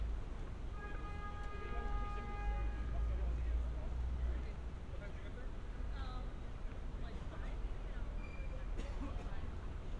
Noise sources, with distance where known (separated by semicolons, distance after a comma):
car horn, far